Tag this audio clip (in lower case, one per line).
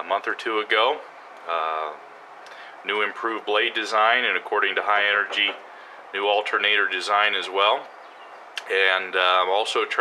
speech